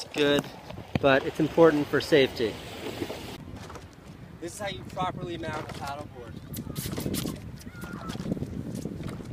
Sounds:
outside, rural or natural, Speech

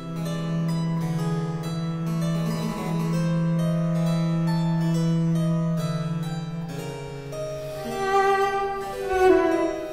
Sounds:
Harpsichord, Music

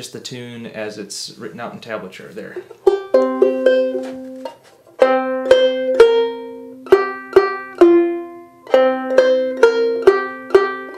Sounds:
Speech, Music

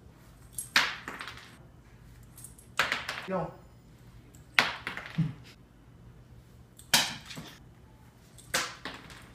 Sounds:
Speech

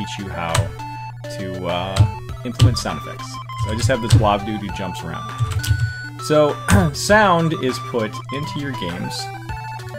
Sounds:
Music, Funny music, Video game music, Speech, Sound effect

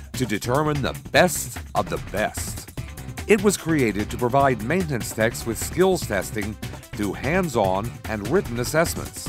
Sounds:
Music, Speech

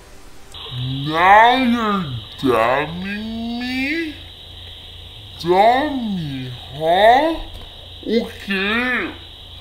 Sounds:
Speech, inside a small room

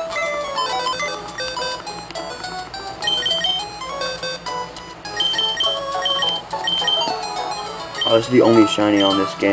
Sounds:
Speech, Music

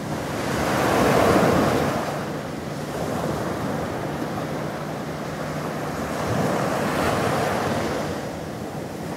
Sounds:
Ocean, Waves, ocean burbling

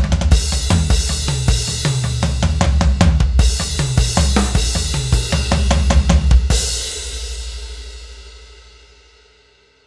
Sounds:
Music

